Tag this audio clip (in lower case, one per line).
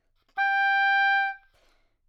woodwind instrument
music
musical instrument